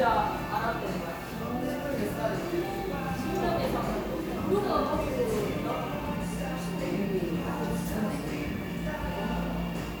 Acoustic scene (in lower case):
crowded indoor space